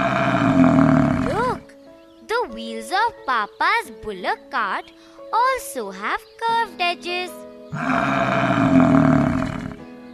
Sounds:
Music, kid speaking, Speech

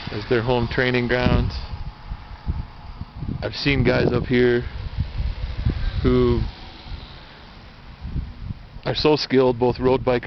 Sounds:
Speech

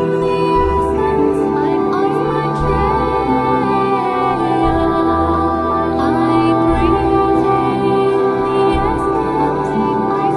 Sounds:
Music, Mantra

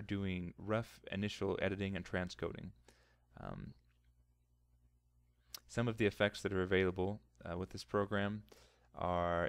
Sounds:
Speech

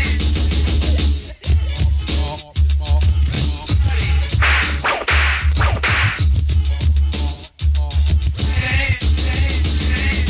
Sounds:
Hip hop music, Music

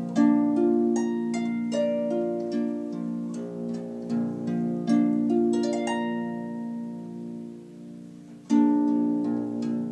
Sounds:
playing harp

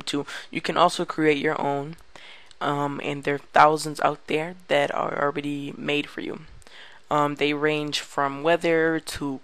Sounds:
Speech

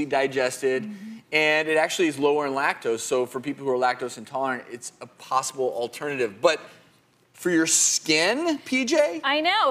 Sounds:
Speech

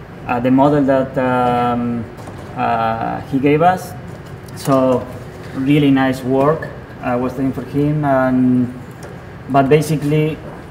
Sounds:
Speech

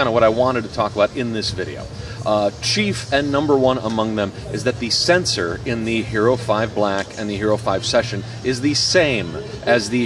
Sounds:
Speech

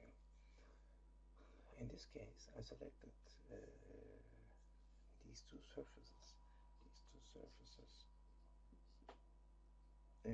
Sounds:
Speech

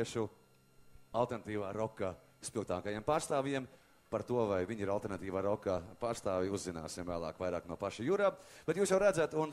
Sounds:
Speech

